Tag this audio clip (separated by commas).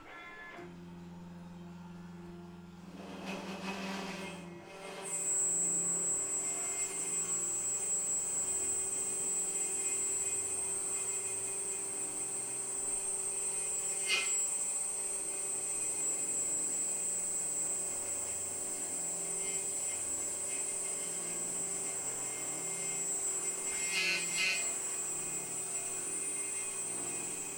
Drill, Tools, Power tool